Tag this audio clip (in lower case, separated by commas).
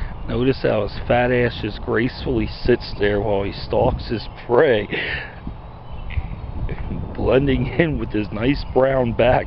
speech, animal